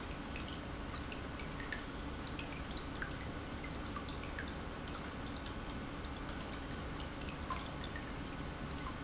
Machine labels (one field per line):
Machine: pump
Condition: normal